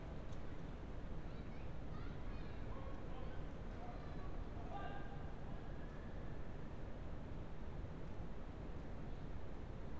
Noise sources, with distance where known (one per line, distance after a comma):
person or small group shouting